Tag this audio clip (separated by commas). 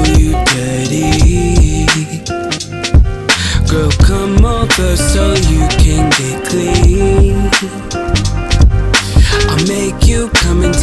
Music